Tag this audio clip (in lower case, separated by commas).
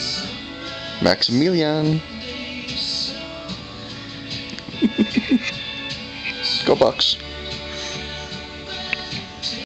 music, speech